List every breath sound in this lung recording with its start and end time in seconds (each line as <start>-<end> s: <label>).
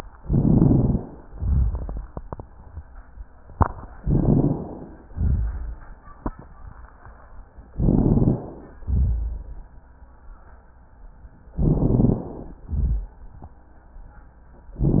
0.17-1.14 s: inhalation
0.17-1.14 s: crackles
1.25-2.05 s: exhalation
1.25-2.05 s: rhonchi
3.97-5.05 s: inhalation
3.97-5.05 s: crackles
5.10-5.62 s: exhalation
5.10-5.62 s: rhonchi
7.76-8.84 s: inhalation
7.76-8.84 s: crackles
8.84-9.36 s: exhalation
8.84-9.36 s: rhonchi
11.57-12.62 s: inhalation
11.57-12.62 s: crackles
12.68-13.19 s: exhalation
12.68-13.19 s: rhonchi